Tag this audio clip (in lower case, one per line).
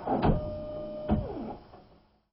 printer
mechanisms